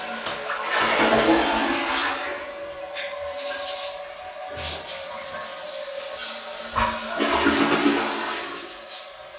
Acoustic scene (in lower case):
restroom